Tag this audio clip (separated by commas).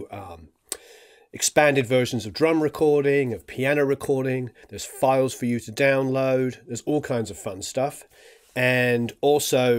Speech